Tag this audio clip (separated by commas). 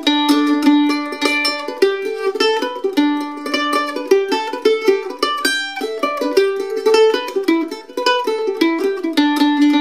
Plucked string instrument, Music, Mandolin, Musical instrument, Guitar